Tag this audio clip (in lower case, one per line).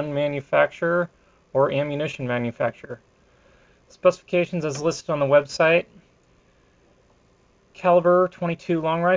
speech